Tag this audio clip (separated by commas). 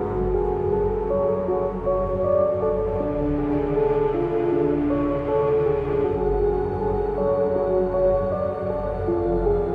Music, Scary music